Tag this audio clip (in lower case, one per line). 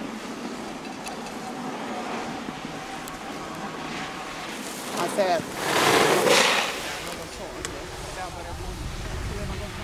skiing